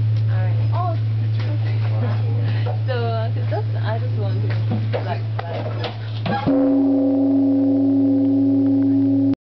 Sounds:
speech

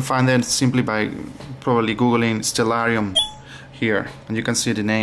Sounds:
speech

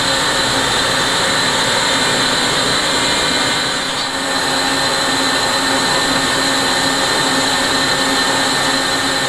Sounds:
tools

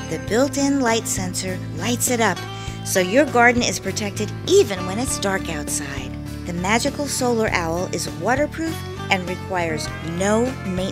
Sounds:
speech, music

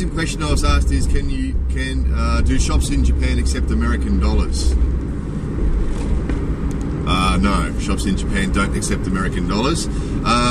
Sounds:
vehicle, speech, car

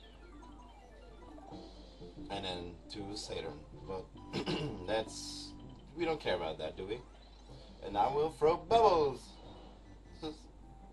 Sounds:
speech

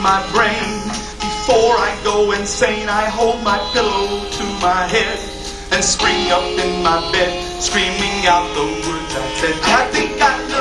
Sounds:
music, male singing

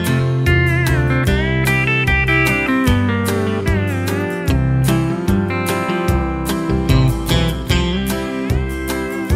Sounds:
music, guitar

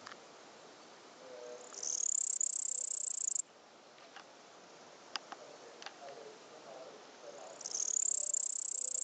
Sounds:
cricket chirping

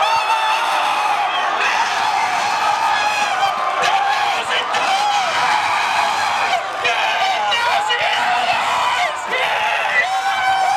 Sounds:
speech

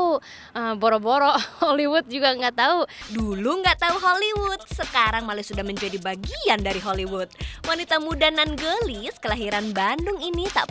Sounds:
speech, music

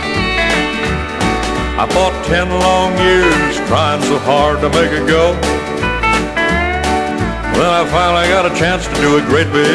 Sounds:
music, country

